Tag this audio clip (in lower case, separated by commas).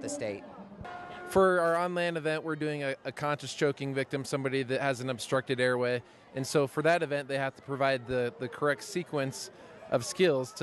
speech